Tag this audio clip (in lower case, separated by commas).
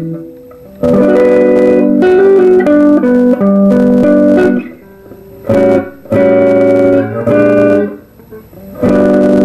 strum, guitar, music, bass guitar, acoustic guitar, musical instrument, playing bass guitar